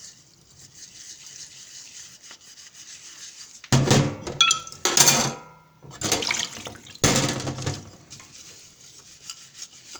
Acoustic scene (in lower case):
kitchen